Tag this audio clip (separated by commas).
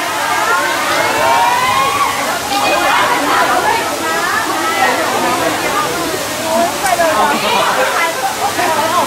Speech